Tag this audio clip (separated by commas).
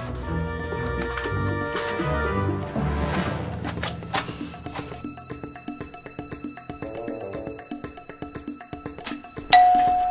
Music